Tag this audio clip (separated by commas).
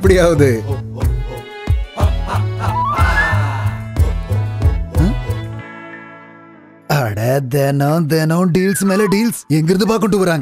Jingle (music), Music, Speech